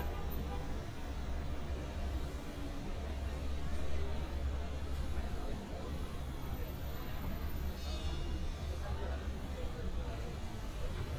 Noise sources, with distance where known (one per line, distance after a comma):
unidentified powered saw, far
car horn